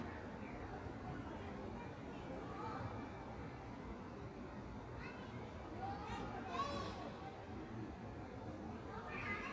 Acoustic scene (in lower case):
park